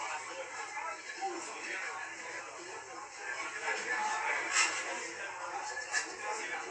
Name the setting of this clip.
restaurant